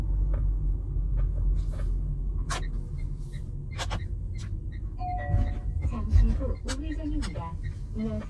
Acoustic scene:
car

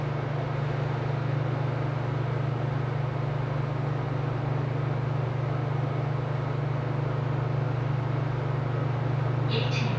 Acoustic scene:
elevator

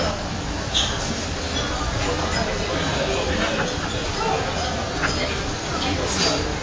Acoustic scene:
crowded indoor space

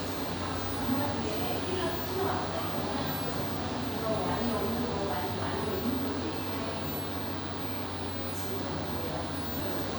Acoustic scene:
cafe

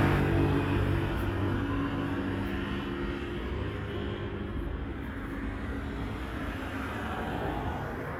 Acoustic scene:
street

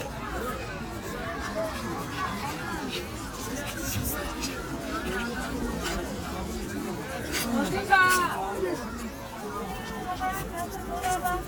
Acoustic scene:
park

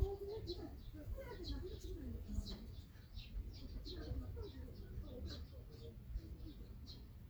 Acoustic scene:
park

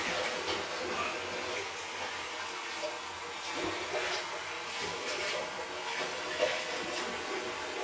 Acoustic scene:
restroom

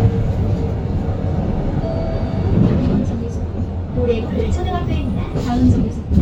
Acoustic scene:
bus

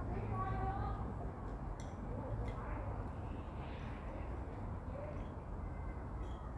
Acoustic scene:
residential area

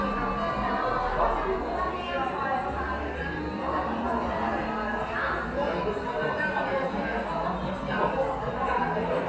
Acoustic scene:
cafe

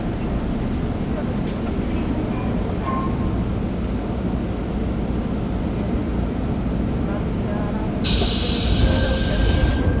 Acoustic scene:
subway train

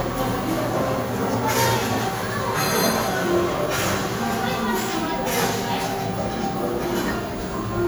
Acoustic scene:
cafe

